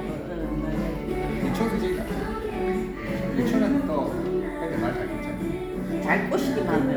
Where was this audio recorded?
in a cafe